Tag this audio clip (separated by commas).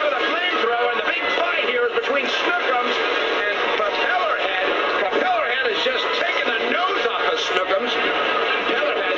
Speech